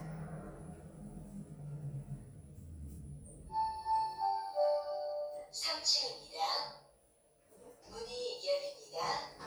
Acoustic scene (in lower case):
elevator